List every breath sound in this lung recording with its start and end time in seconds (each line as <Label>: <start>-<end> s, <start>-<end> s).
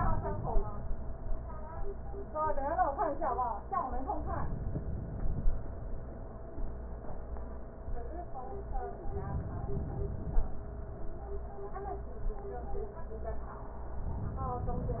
Inhalation: 4.12-5.55 s, 9.11-10.53 s